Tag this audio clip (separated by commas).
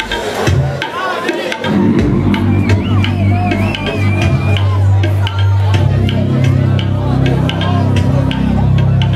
Music, Speech, Crowd, Sound effect